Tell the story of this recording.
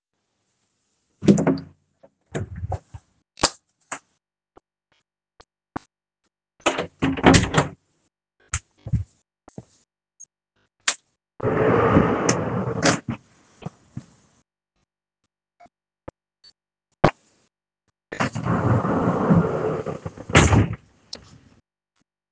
I walked into the bedroom and turned the light on. Then I opened and closed a wardrobe drawer. The light switch happened before the drawer sound.